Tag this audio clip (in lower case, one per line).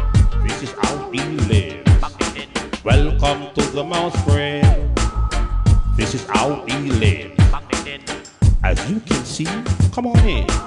music